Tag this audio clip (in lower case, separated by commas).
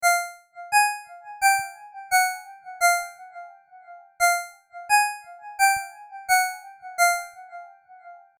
alarm, ringtone, telephone